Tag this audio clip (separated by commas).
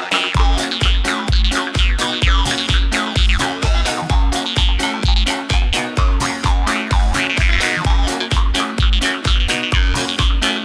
Music, House music